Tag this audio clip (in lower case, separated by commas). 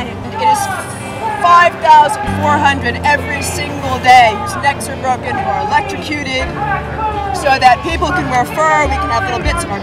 music, speech